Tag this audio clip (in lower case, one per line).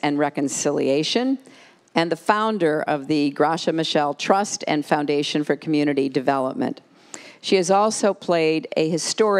speech